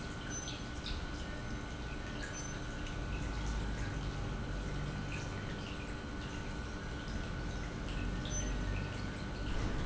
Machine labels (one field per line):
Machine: pump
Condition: normal